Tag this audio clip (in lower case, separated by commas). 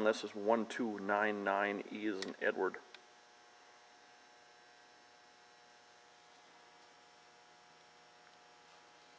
speech